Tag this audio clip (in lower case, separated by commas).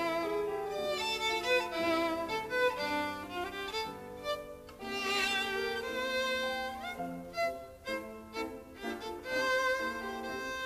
musical instrument, fiddle, music